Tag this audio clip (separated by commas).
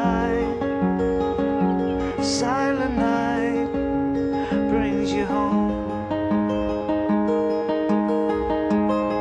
Music